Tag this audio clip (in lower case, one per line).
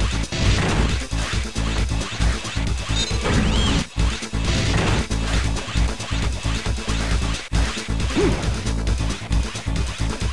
music